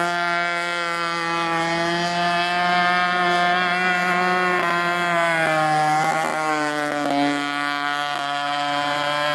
A speedboats' engine accelerating